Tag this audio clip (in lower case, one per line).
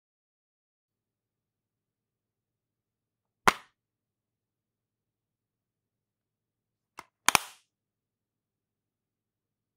sound effect
silence